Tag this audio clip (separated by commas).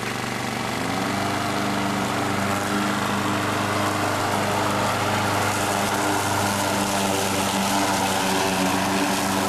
lawn mowing, Vehicle, Lawn mower